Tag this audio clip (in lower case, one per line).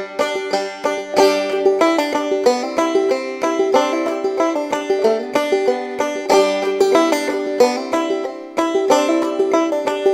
music